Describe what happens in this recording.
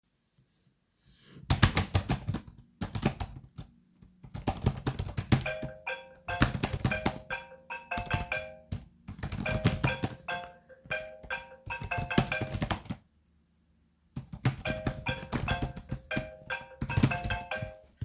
I was working on my computer when my phone started ringing. i kept on typing for a bit more instead of picking up the phone immediately.